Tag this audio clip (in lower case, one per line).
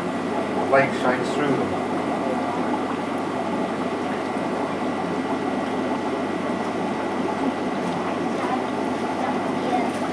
speech
underground